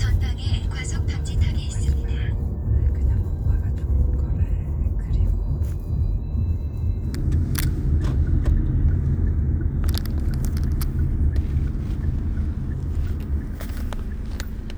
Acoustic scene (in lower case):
car